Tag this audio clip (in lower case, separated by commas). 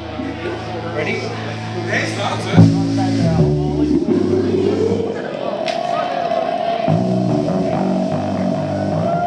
guitar, music, speech